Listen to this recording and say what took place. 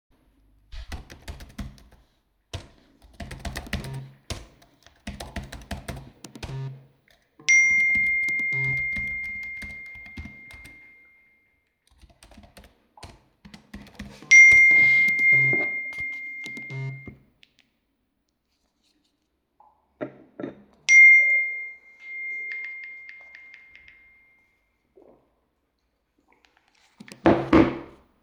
I am typing on my computer and continiously get notifications from my phone. I take my phone and type on it, while grabbing my drink and sipping it